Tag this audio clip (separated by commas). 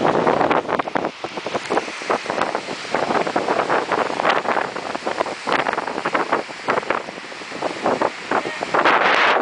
Silence, Speech